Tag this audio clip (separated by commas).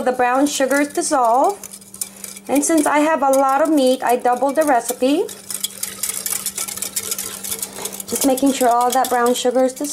Speech, inside a small room